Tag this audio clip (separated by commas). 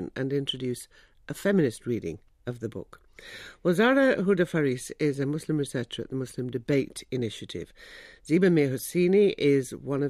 Speech